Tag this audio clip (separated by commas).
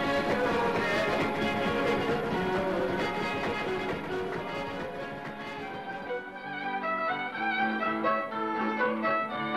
Musical instrument, fiddle, Music